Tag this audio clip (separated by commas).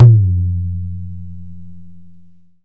Drum, Musical instrument, Percussion, Tabla, Music